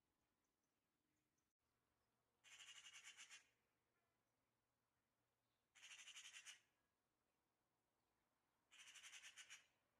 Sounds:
magpie calling

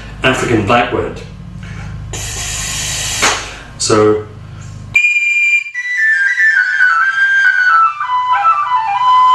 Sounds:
Musical instrument, Speech, Music

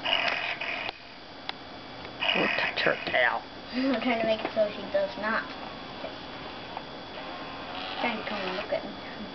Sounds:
Speech

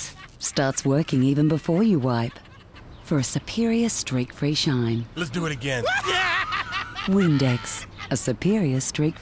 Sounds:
Speech

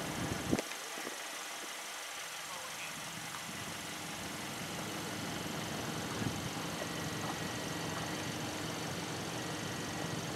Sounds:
horse clip-clop

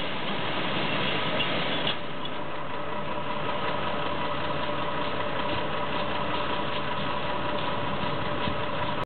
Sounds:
Vehicle

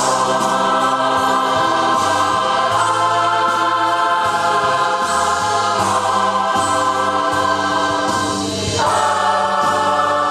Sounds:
Choir, Music

